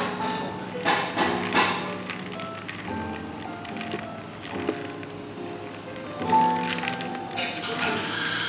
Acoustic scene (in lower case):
cafe